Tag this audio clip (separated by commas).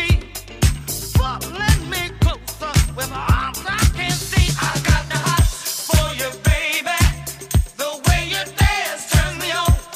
Music, Disco